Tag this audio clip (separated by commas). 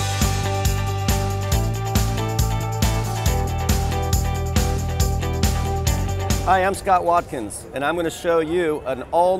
Music, Speech